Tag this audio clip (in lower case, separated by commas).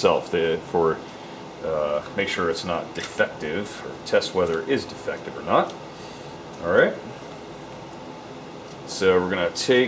speech